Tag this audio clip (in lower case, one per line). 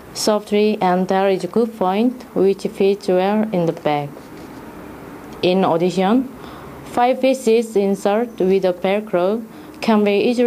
speech